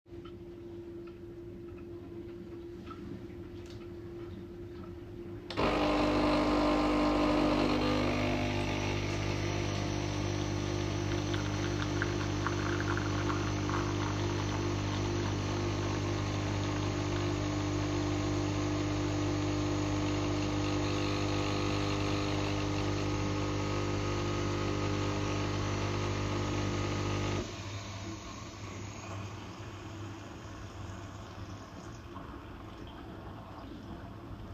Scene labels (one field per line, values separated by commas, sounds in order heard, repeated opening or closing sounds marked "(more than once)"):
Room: kitchen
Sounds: coffee machine